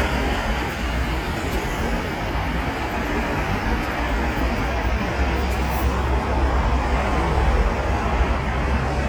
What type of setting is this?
street